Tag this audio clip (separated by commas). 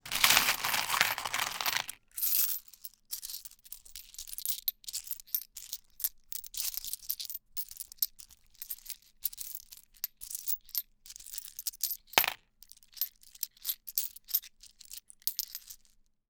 Coin (dropping), home sounds